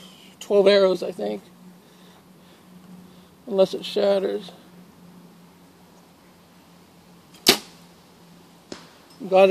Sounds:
Speech

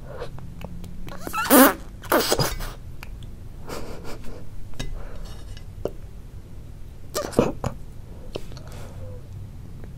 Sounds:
people eating noodle

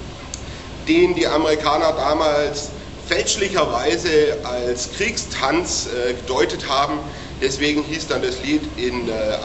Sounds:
Speech, inside a large room or hall

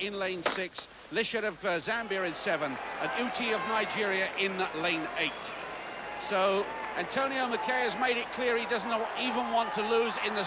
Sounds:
Speech, outside, urban or man-made

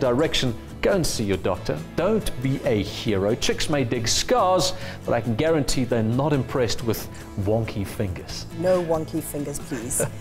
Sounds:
Music, Speech

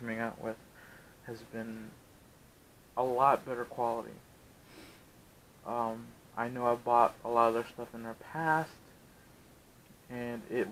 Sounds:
Speech

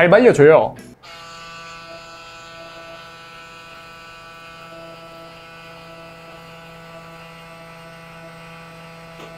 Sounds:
electric razor shaving

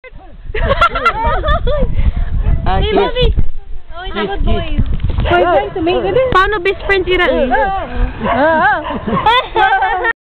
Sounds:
Animal, Speech

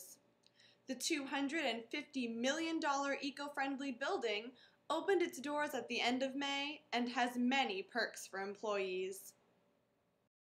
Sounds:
Speech

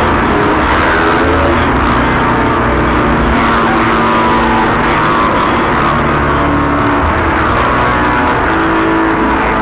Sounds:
Electronic music, Plucked string instrument, Guitar, Electric guitar, Musical instrument, Music, Electronica

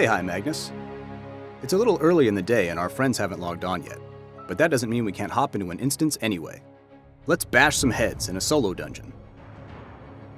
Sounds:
Speech, Music

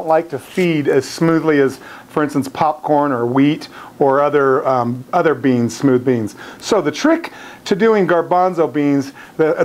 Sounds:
Speech

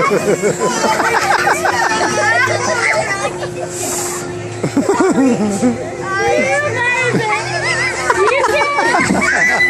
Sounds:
Speech

